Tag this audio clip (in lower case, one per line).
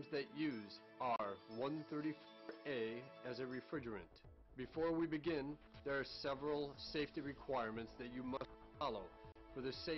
speech
music